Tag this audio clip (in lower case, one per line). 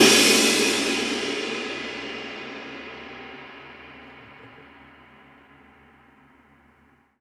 musical instrument
cymbal
crash cymbal
music
percussion